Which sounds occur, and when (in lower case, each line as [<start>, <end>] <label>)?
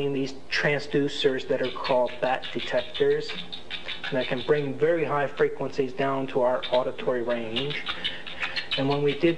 [0.00, 0.34] man speaking
[0.00, 9.35] mechanisms
[0.49, 3.37] man speaking
[1.58, 4.65] mouse
[4.08, 7.72] man speaking
[6.61, 6.77] mouse
[7.53, 9.35] mouse
[7.79, 8.76] breathing
[8.73, 9.35] man speaking